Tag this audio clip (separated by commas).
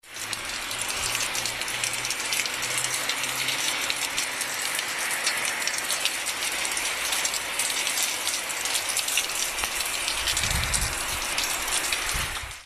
Water, Rain